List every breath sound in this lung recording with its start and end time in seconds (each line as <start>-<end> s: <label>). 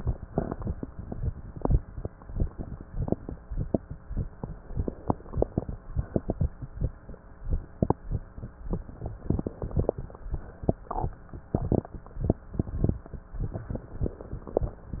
4.73-5.68 s: inhalation
5.92-6.49 s: exhalation
9.22-9.96 s: inhalation
10.61-11.16 s: exhalation
13.66-14.57 s: inhalation